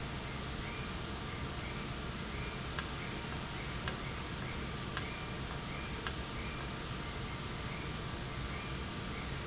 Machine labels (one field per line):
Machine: valve